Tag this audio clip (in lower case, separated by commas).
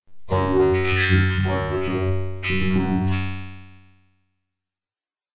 speech, human voice, speech synthesizer